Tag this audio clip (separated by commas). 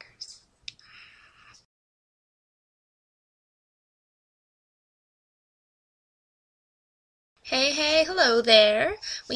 Silence, inside a small room, Speech